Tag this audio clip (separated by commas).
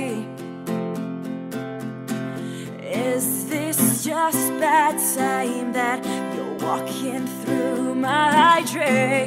Music